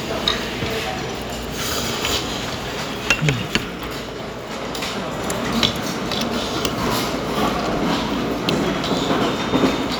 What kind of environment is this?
restaurant